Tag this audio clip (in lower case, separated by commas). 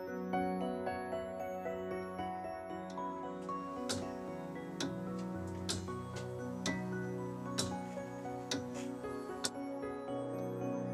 tick-tock, music, tick